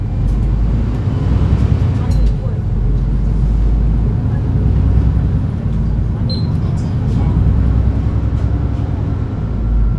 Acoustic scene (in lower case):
bus